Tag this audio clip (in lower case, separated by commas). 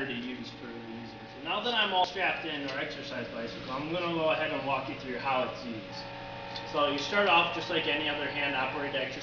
speech